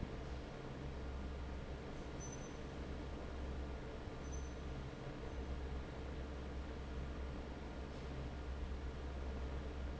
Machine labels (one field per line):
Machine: fan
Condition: normal